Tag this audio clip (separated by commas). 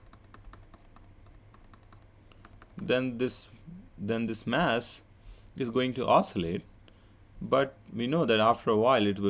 Speech, Clicking